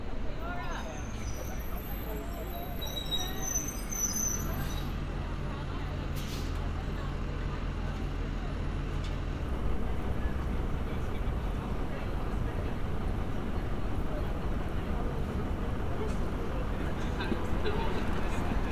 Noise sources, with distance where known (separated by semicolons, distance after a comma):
large-sounding engine; person or small group talking